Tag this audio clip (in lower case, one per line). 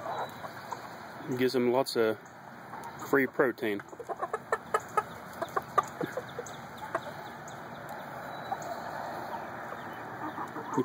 speech
chicken